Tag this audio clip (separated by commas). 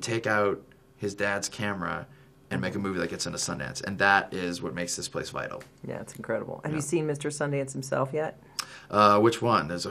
Speech